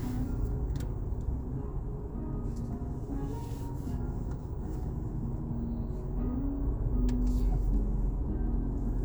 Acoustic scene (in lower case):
car